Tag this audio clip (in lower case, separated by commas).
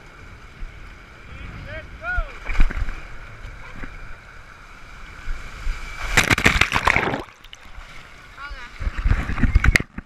gurgling, speech